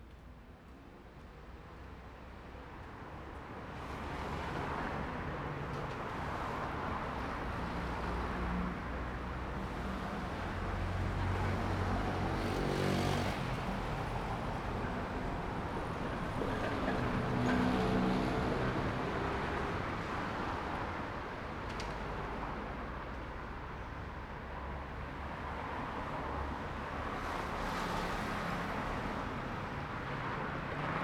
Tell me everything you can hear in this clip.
motorcycle, car, bus, motorcycle engine accelerating, motorcycle brakes, car wheels rolling, car engine accelerating, bus wheels rolling